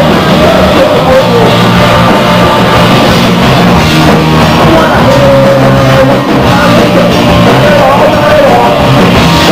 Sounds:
Music

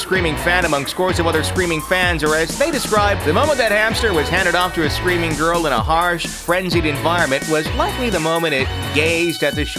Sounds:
Music, Speech

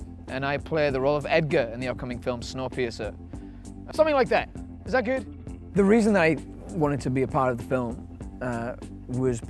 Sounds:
Speech, Music

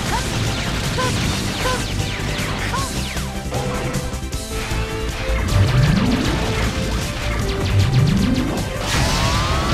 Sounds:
Music

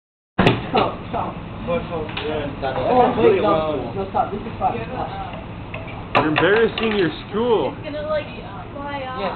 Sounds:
Speech

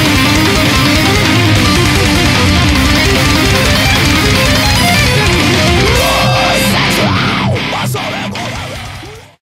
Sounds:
Strum, Musical instrument, Electric guitar, Guitar, Plucked string instrument, Music

